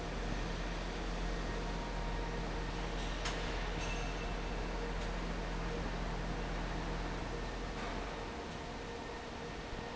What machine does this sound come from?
fan